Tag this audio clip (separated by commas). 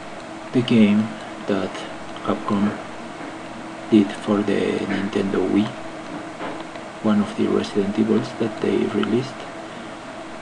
Speech